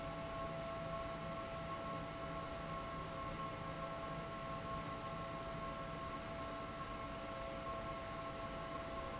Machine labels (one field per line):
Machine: fan